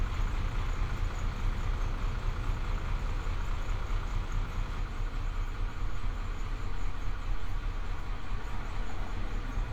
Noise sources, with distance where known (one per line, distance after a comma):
large-sounding engine